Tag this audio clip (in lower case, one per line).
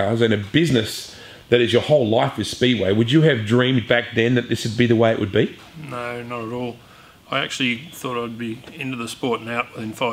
speech